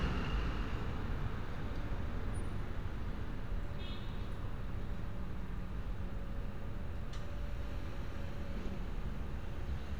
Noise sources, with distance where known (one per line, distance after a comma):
car horn, far